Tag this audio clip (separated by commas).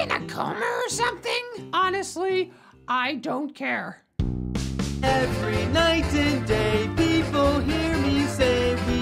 Music for children